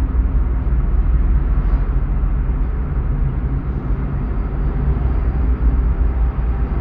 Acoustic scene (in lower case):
car